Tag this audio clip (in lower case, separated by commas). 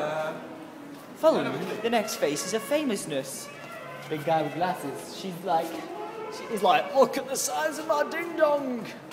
music, speech